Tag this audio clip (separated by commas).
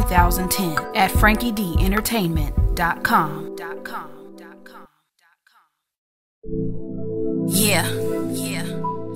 Speech, Music